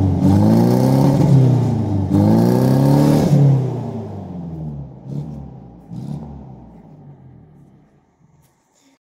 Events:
0.0s-9.0s: medium engine (mid frequency)
0.0s-4.6s: accelerating
5.0s-5.5s: accelerating
5.9s-6.6s: accelerating
6.8s-7.0s: generic impact sounds
7.6s-8.1s: generic impact sounds
8.4s-8.6s: generic impact sounds
8.7s-8.9s: breathing

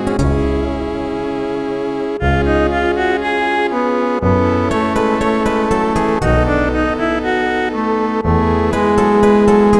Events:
0.0s-9.7s: music

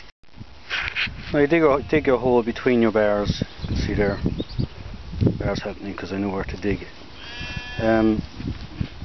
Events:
0.0s-0.1s: wind
0.2s-9.0s: wind
0.7s-1.1s: generic impact sounds
1.0s-1.9s: wind noise (microphone)
1.2s-3.4s: male speech
3.4s-4.7s: tweet
3.6s-6.8s: wind noise (microphone)
3.7s-4.1s: male speech
5.2s-6.9s: male speech
6.4s-6.8s: generic impact sounds
7.2s-8.2s: bleat
7.4s-9.0s: wind noise (microphone)
7.8s-8.2s: male speech
8.5s-9.0s: generic impact sounds

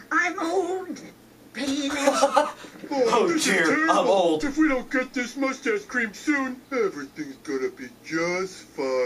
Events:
0.0s-9.0s: mechanisms
2.0s-2.5s: laughter
2.5s-2.8s: breathing
3.0s-4.4s: male speech
6.7s-9.0s: speech synthesizer

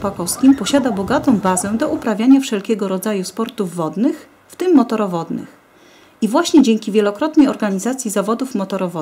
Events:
0.0s-4.3s: female speech
0.0s-9.0s: water
0.0s-9.0s: wind
0.4s-0.8s: bird vocalization
1.4s-1.8s: bird vocalization
4.0s-4.5s: breathing
4.5s-5.5s: female speech
5.6s-6.2s: breathing
6.2s-9.0s: female speech

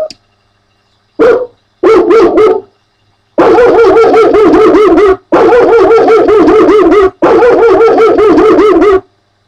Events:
0.0s-0.1s: generic impact sounds
0.0s-9.4s: mechanisms
0.0s-0.2s: tick
1.1s-1.5s: bark
1.8s-2.7s: bow-wow
3.3s-5.2s: bow-wow
5.3s-7.1s: bow-wow
7.2s-9.0s: bow-wow

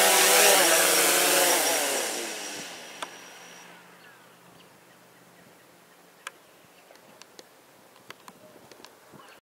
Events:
0.0s-4.6s: electric rotor drone
0.0s-9.4s: wind
3.0s-3.1s: tick
4.0s-4.7s: bird vocalization
4.9s-5.6s: bird vocalization
5.9s-6.3s: bird vocalization
6.2s-6.3s: tick
6.7s-7.2s: bird vocalization
6.9s-7.0s: tick
7.2s-7.2s: tick
7.4s-7.5s: tick
8.0s-8.3s: tick
8.4s-8.6s: bird vocalization
8.7s-8.9s: tick
9.2s-9.4s: bird vocalization
9.3s-9.3s: tick

